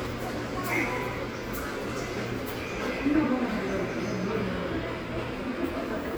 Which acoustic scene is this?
subway station